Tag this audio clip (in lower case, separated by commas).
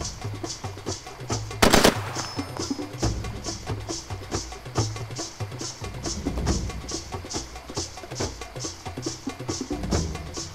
music